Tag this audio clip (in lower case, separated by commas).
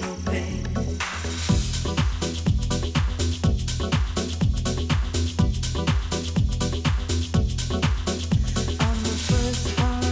music